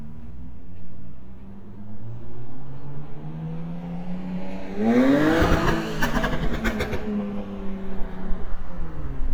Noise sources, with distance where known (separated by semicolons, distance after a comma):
medium-sounding engine, near